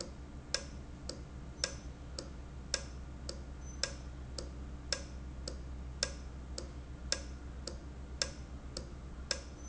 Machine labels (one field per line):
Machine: valve